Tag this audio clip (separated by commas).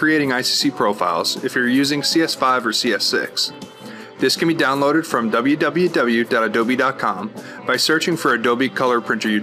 Speech, Music